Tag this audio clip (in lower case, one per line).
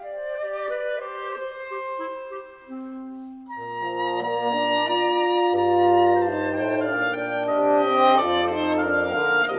music